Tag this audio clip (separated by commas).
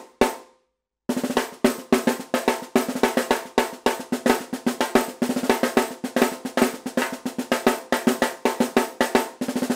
Percussion, Drum, playing snare drum, Snare drum, Drum roll, Bass drum